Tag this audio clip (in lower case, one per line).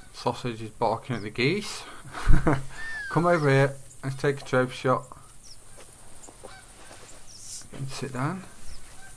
animal
speech